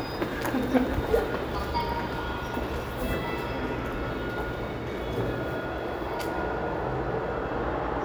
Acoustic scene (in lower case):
elevator